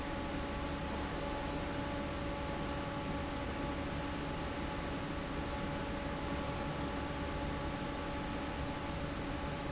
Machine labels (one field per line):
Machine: fan